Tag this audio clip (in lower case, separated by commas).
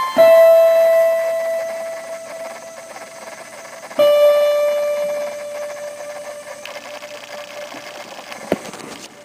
music